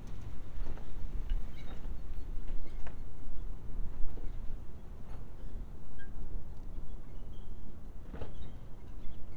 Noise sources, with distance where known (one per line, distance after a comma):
background noise